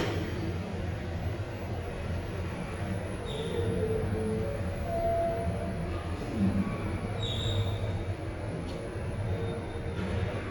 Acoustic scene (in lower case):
elevator